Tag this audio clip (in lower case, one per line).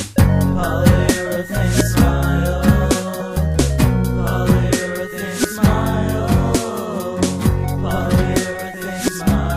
soul music